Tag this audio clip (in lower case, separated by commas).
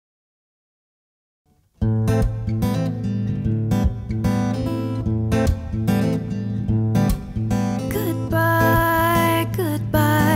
singing, music